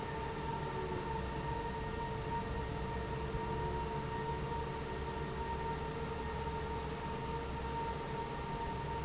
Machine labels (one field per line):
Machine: fan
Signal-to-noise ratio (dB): -6 dB